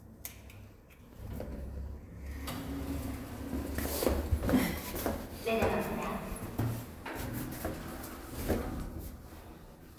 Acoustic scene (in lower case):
elevator